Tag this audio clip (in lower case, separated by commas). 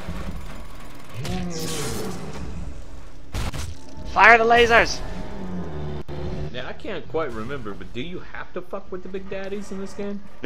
speech